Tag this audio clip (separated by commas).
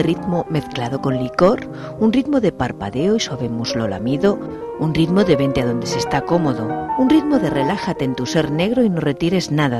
Speech, Music